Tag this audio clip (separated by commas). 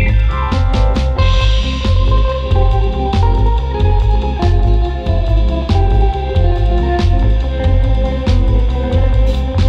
Music